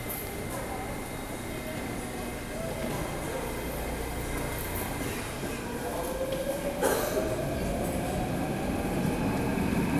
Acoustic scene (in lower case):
subway station